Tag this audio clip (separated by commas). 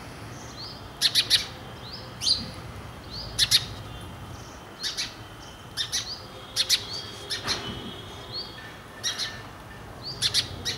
outside, rural or natural, tweet, tweeting, Bird, bird song